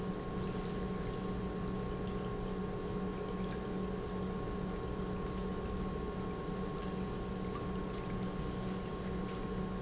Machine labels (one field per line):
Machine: pump